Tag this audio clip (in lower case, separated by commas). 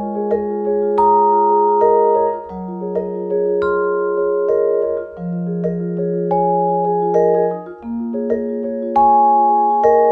playing vibraphone